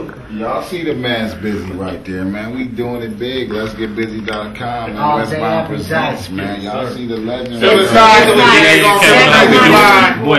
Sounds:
speech

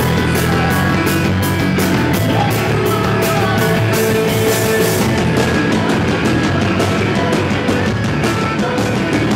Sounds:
music

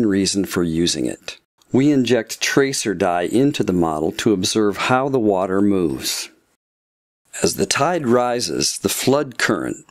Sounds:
speech

